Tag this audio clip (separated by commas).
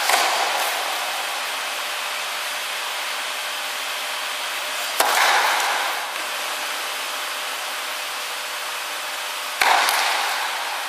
inside a large room or hall